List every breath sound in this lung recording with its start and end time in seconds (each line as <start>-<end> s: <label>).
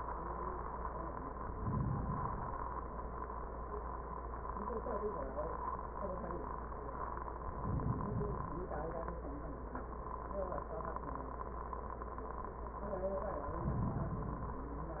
1.46-2.96 s: inhalation
7.44-9.16 s: inhalation
13.42-14.95 s: inhalation